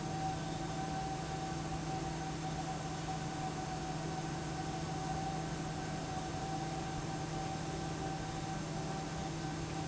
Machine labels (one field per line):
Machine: fan